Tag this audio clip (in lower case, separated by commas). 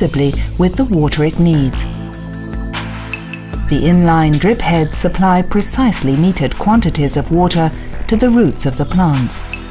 speech, drip, music